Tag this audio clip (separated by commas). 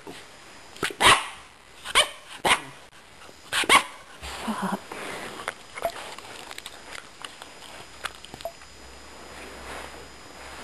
Dog, Domestic animals, dog barking, Animal, Bark